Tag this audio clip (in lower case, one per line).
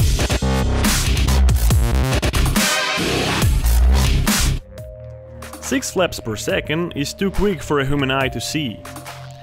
bird wings flapping